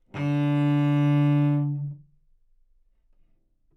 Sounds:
Music, Musical instrument, Bowed string instrument

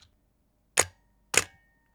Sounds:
Mechanisms, Camera

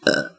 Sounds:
Burping

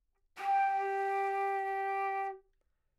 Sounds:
Musical instrument, Music, woodwind instrument

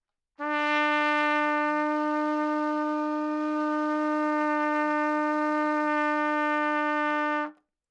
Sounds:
Brass instrument, Trumpet, Music, Musical instrument

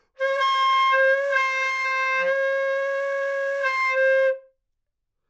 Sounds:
Wind instrument, Musical instrument, Music

